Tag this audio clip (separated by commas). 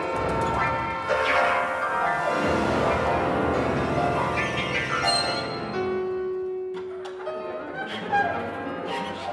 Double bass, Violin, Bowed string instrument, Cello